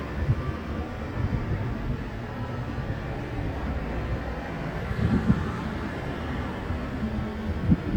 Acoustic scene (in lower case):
street